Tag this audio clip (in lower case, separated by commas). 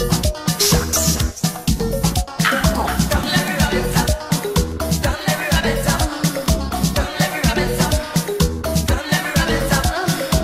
music, music of latin america